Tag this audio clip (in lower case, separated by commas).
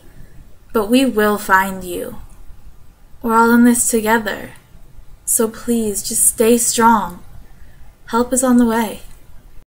speech